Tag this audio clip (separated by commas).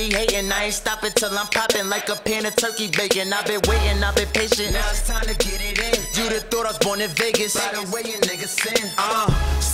Music, Dance music